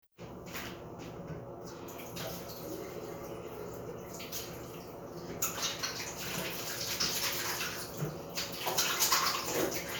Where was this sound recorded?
in a restroom